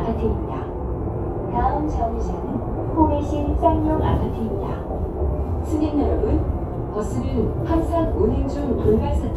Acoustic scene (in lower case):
bus